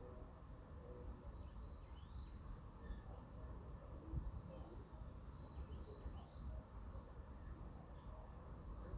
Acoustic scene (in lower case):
park